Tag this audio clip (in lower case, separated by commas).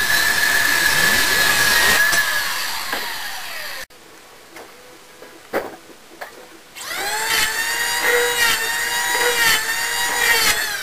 wood